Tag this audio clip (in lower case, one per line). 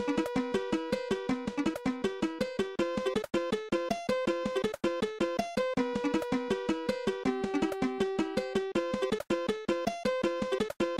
video game music
music